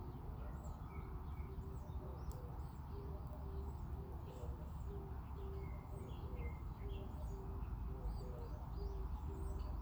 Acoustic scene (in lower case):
park